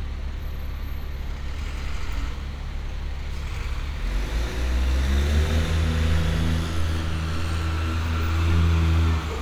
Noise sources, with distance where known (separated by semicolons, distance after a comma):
large-sounding engine, near